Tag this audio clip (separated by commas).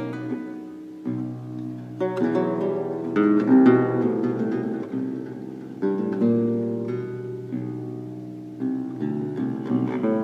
Double bass, Music, Musical instrument, Plucked string instrument